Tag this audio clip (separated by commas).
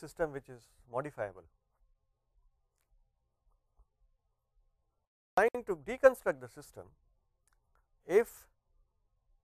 Speech